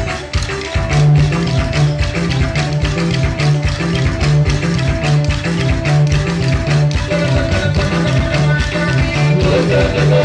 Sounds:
music, folk music

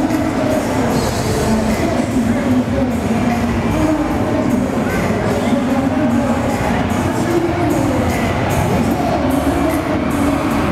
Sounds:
music, speech

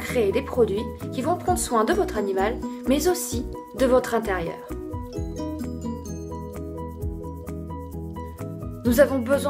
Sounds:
speech, music

